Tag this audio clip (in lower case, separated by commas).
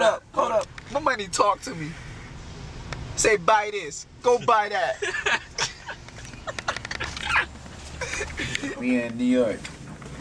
speech